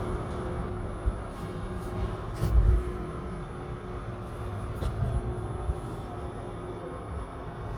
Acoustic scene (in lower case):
elevator